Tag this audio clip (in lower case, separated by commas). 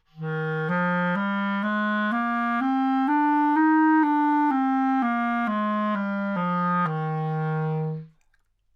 woodwind instrument, music, musical instrument